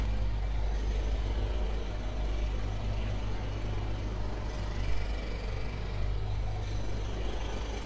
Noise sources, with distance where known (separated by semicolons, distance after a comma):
jackhammer